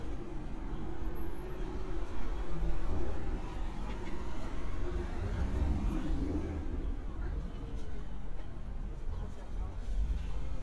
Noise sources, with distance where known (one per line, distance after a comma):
medium-sounding engine
person or small group talking